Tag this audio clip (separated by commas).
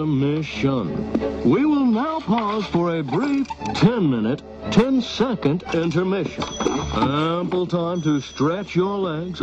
Speech